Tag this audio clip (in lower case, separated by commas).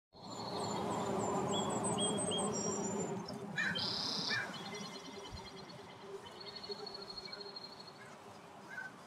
fly, bee or wasp, insect